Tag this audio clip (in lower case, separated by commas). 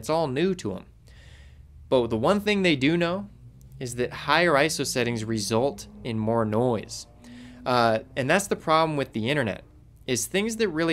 speech